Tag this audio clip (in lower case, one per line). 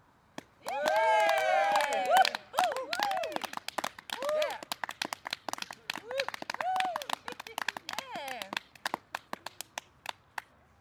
human group actions
cheering